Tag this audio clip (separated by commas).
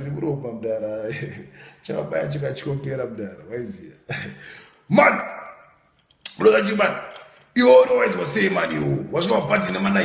inside a small room, Speech